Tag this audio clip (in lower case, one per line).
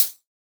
music
hi-hat
percussion
cymbal
musical instrument